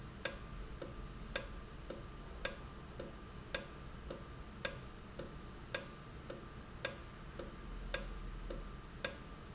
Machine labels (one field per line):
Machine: valve